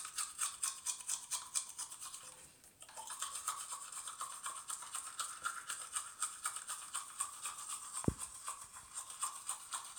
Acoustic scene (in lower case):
restroom